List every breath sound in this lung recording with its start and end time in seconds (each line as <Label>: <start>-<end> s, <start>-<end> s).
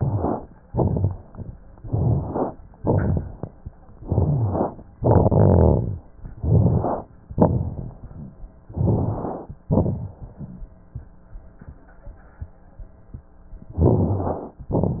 Inhalation: 0.00-0.55 s, 1.72-2.56 s, 3.91-4.85 s, 6.15-7.13 s, 8.64-9.60 s, 13.73-14.69 s
Exhalation: 0.64-1.55 s, 2.78-3.71 s, 4.96-6.05 s, 7.27-8.32 s, 9.66-10.62 s, 14.69-15.00 s
Crackles: 0.00-0.55 s, 0.64-1.55 s, 1.72-2.56 s, 2.78-3.71 s, 3.91-4.85 s, 4.96-6.05 s, 6.15-7.13 s, 7.27-8.32 s, 8.64-9.60 s, 9.66-10.62 s, 13.73-14.69 s, 14.69-15.00 s